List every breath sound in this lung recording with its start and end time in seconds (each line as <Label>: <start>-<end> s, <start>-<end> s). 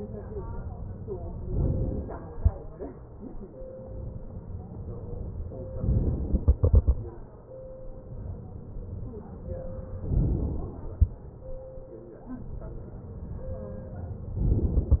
Inhalation: 1.50-2.40 s, 5.87-6.46 s, 10.11-11.03 s
Exhalation: 6.46-8.62 s